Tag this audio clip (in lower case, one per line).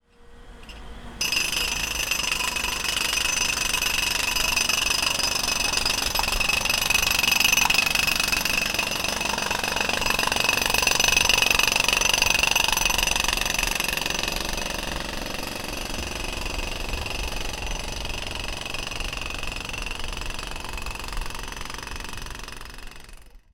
tools